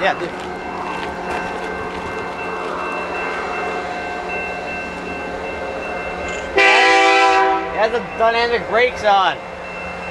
Bells ringing and train blowing a horn